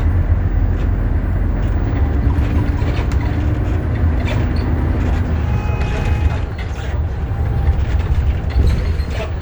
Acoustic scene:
bus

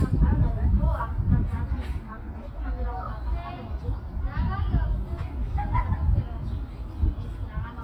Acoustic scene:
park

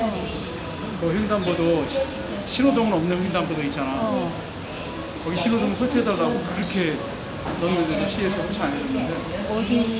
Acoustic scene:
crowded indoor space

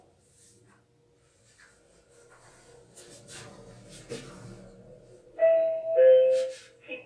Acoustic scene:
elevator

